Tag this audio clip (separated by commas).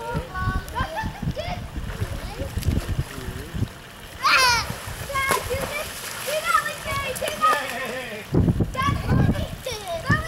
Speech